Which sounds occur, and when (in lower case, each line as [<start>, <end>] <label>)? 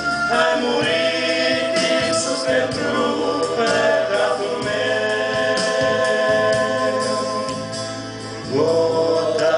[0.00, 9.55] music
[0.28, 7.86] choir
[8.46, 9.55] choir